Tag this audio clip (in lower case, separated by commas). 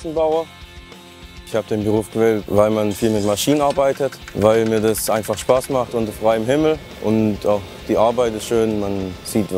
speech, music